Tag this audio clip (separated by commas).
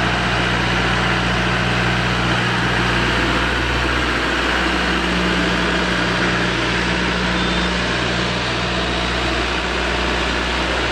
tractor digging